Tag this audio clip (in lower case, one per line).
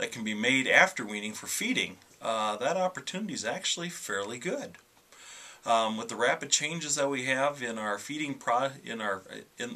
speech